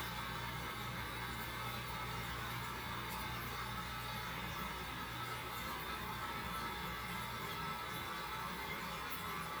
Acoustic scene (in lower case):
restroom